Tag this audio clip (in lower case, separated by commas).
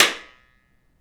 clapping, hands